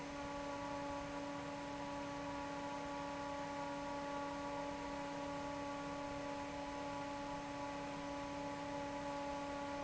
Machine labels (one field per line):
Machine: fan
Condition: normal